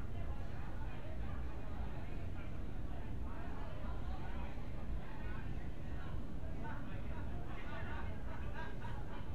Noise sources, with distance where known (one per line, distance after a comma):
person or small group talking, far